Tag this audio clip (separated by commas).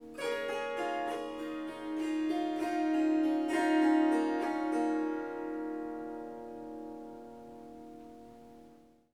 Musical instrument, Music, Harp